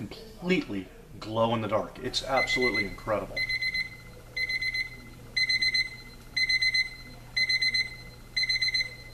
Man talking while an electronic device beeps